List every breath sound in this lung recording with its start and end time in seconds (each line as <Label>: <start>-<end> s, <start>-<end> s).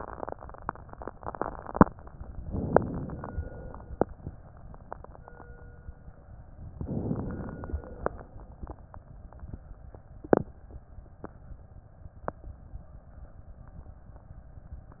Inhalation: 2.43-3.34 s, 6.78-7.68 s
Exhalation: 3.34-4.23 s, 7.68-8.54 s